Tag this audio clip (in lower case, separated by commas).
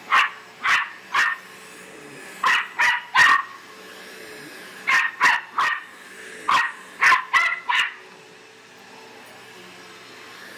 animal, bow-wow, bark, dog, domestic animals, dog bow-wow